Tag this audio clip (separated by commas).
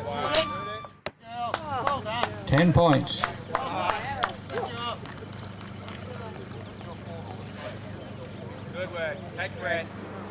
Arrow